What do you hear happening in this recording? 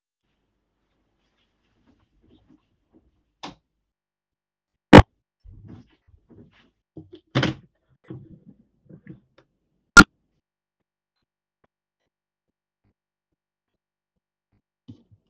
I walk in bedroom(door is open)turn the light on and open the window